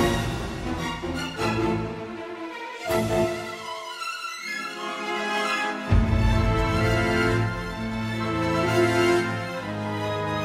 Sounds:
music

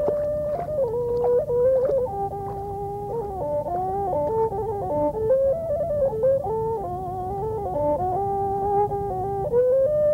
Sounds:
music

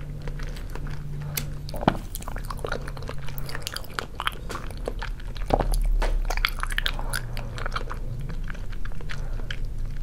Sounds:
people eating noodle

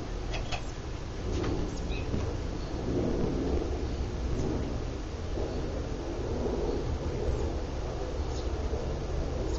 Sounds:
mechanical fan

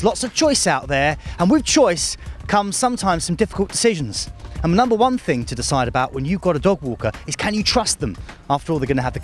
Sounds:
music, speech

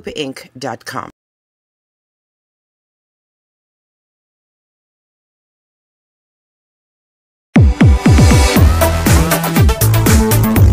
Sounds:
speech, music

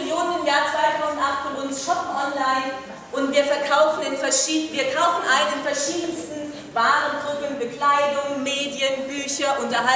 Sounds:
speech

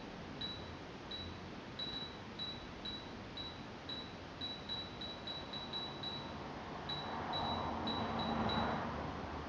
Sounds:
ping

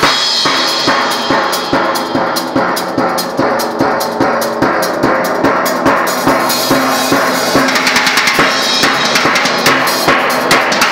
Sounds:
music, drum, drum kit, musical instrument, bass drum

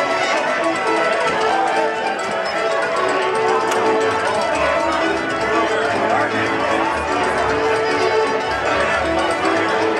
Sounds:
violin, fiddle, speech, music, musical instrument

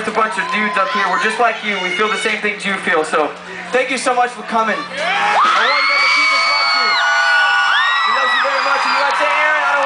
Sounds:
male speech, speech

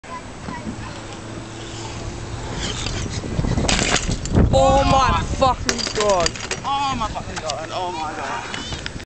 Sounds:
speech

